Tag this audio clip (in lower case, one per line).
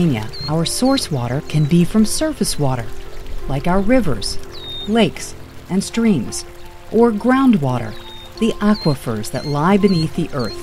music
speech